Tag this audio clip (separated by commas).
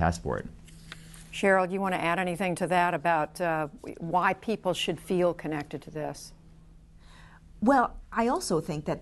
Female speech, Speech